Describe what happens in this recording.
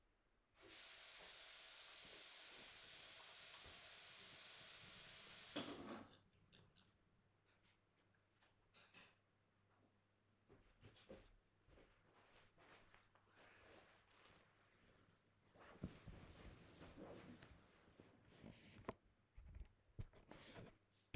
running tapwater putting down dishes and hitting a light switch